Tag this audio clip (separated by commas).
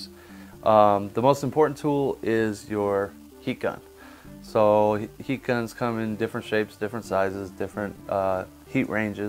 Speech, Music